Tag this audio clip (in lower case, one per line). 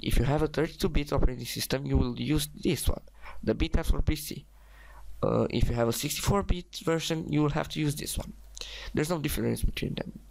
speech